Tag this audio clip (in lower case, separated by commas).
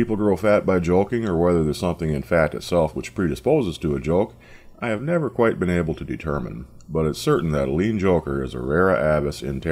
speech